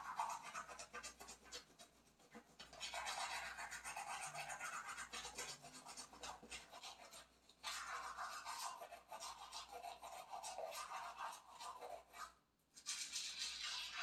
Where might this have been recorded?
in a restroom